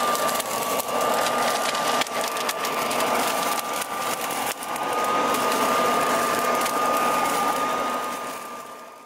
A small motor is running and something is rustling